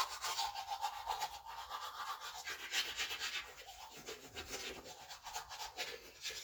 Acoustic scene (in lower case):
restroom